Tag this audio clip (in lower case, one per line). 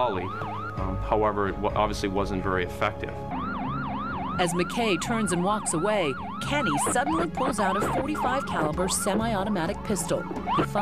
speech